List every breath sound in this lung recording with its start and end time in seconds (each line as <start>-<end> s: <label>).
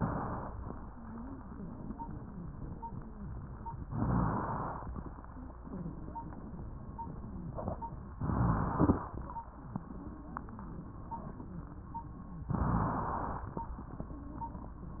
3.88-4.82 s: inhalation
8.16-9.10 s: inhalation
12.50-13.48 s: inhalation